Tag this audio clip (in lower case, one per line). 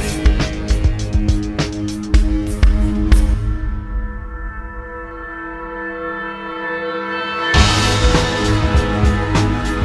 music